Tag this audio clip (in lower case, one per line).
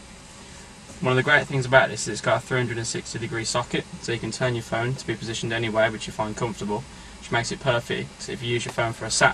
speech